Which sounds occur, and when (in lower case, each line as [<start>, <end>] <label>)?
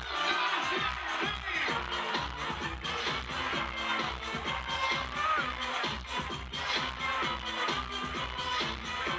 [0.00, 1.75] male singing
[0.00, 9.15] crowd
[0.00, 9.15] music
[1.81, 9.15] singing